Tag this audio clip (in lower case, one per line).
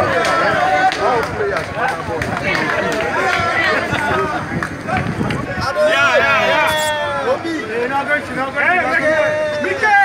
footsteps
speech